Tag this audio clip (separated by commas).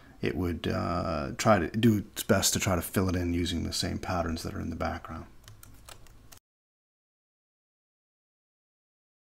Speech